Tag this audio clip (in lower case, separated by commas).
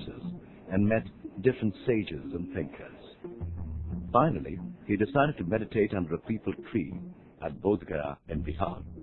speech, music